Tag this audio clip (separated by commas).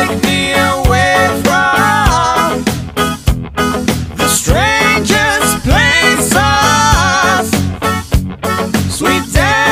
Music